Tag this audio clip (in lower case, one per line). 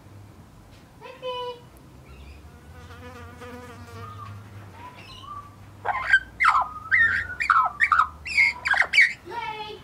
magpie calling